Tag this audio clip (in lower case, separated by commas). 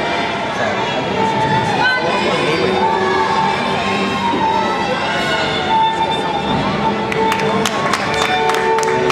speech, music